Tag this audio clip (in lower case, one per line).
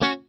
music
musical instrument
guitar
plucked string instrument